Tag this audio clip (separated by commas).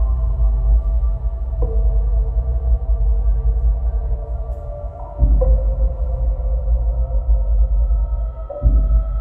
Music